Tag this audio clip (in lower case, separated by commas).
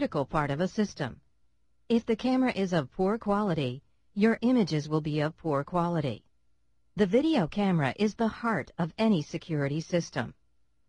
speech